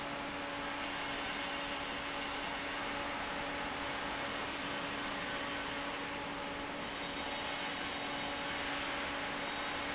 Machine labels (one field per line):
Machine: fan